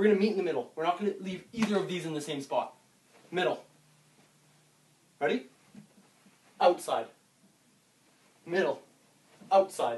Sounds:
Speech

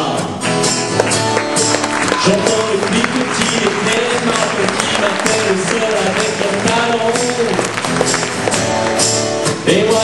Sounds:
Music

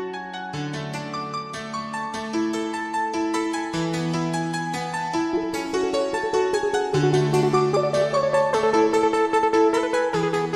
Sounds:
Music

